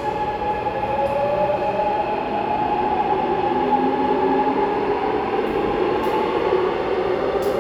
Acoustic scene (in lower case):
subway station